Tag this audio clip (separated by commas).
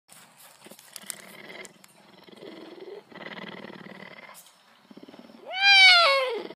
Meow, Cat, Animal